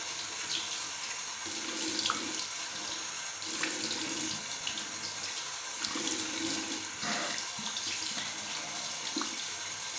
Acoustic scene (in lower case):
restroom